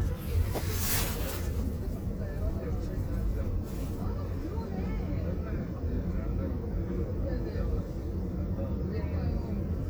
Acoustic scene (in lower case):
car